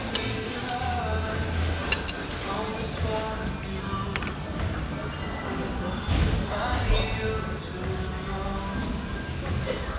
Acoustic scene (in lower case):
restaurant